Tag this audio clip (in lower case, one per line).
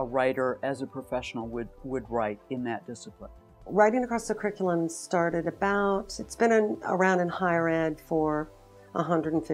music
speech